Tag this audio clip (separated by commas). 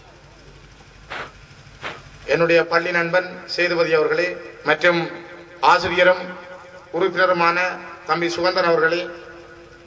Narration, Male speech, Speech